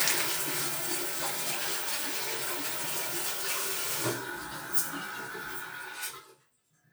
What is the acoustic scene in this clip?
restroom